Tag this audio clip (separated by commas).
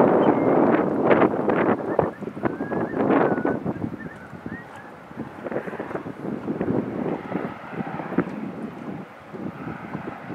Vehicle, outside, rural or natural, Water vehicle